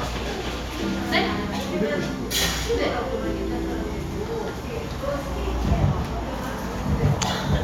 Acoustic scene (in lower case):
cafe